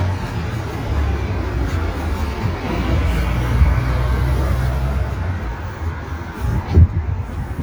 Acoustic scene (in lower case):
street